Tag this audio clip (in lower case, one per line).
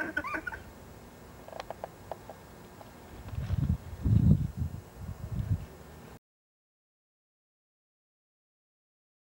animal